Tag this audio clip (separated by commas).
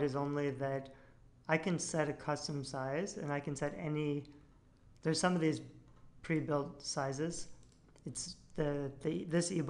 Speech